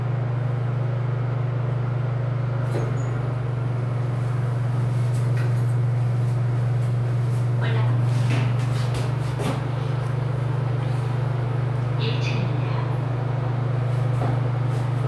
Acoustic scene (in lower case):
elevator